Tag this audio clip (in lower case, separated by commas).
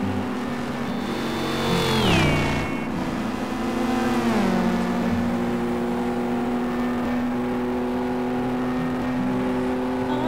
car